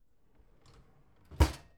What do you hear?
wooden drawer closing